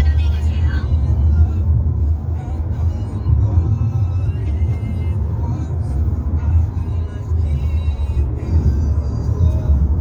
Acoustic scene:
car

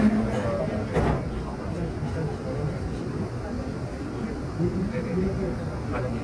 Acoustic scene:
subway train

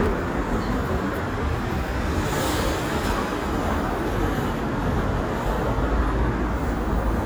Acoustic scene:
street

